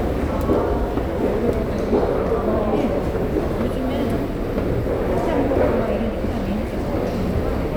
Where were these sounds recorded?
in a subway station